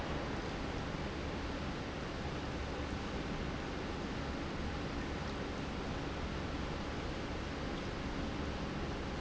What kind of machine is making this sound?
pump